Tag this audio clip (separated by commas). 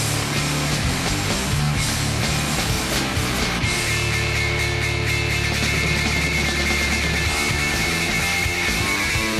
Music, Funk